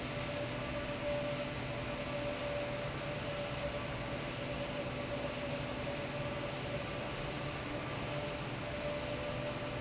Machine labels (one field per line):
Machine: fan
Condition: abnormal